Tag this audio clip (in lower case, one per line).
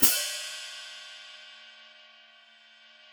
music
cymbal
percussion
musical instrument
hi-hat